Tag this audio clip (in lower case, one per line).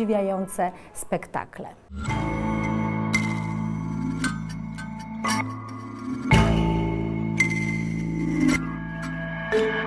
dance music
speech
music